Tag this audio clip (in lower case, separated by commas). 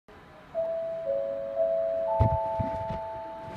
music